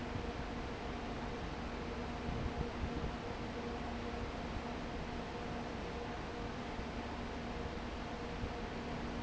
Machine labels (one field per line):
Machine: fan